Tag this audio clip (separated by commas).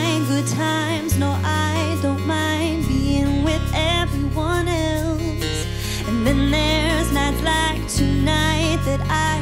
Music